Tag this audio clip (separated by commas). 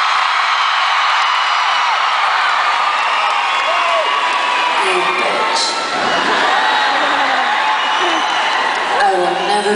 Speech